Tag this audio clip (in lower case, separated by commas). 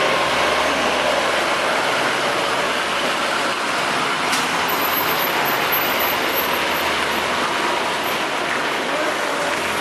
bus, vehicle, driving buses